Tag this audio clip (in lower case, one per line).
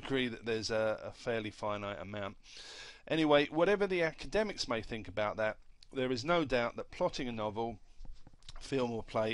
speech